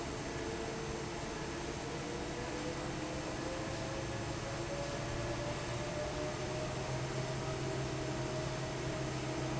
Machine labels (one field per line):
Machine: fan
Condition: normal